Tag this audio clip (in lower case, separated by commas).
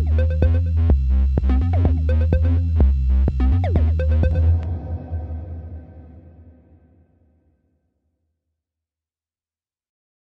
drum machine